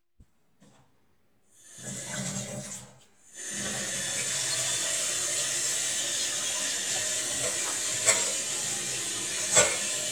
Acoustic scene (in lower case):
kitchen